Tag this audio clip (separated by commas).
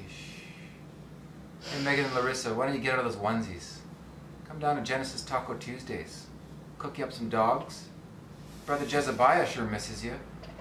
Speech